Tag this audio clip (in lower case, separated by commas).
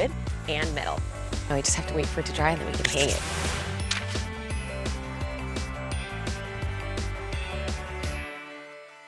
music, speech